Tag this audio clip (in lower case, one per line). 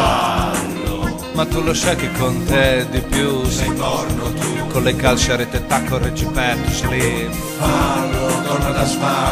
music